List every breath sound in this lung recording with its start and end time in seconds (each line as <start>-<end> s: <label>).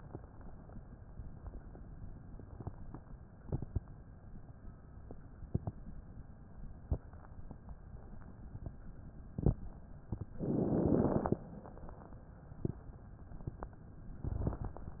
10.40-11.42 s: inhalation
10.40-11.42 s: crackles